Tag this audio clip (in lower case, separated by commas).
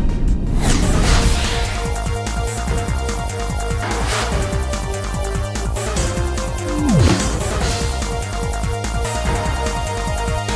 music